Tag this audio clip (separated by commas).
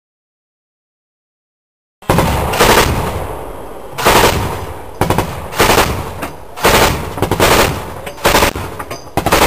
Machine gun